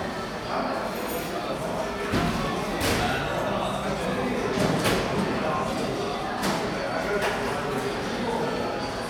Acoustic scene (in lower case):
cafe